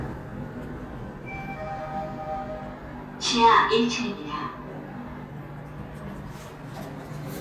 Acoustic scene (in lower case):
elevator